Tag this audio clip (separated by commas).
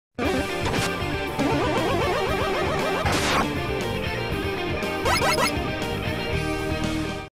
Music